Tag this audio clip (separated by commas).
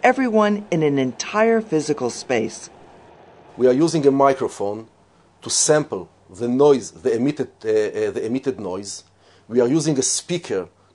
Speech